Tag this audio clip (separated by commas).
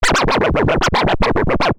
Musical instrument, Music, Scratching (performance technique)